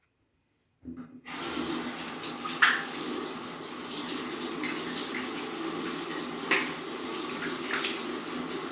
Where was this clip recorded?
in a restroom